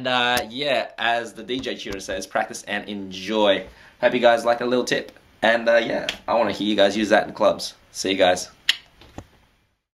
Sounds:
speech, inside a small room

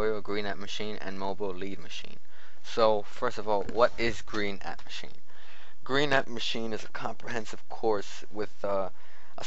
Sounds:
speech

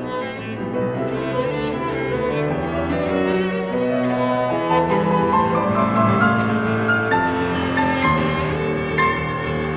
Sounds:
bowed string instrument, music, musical instrument, classical music, cello

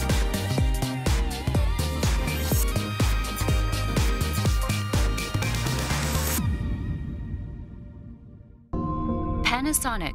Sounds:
electric shaver

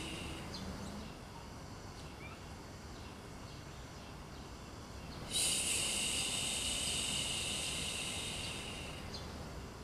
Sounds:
bird vocalization, chirp, bird

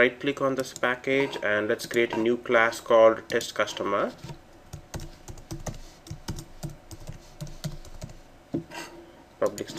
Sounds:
computer keyboard

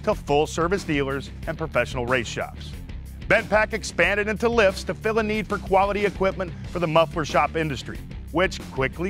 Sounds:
music, speech

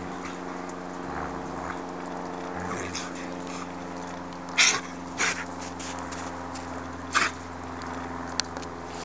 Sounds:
dog, pets

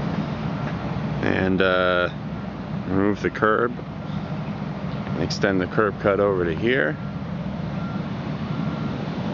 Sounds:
outside, rural or natural, speech

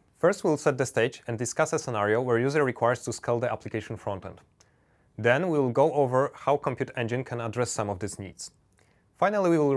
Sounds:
speech

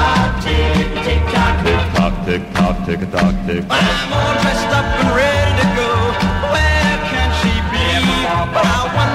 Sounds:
music

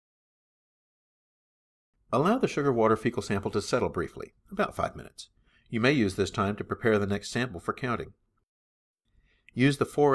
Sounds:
speech

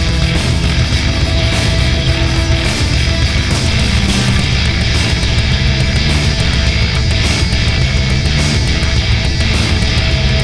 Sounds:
music

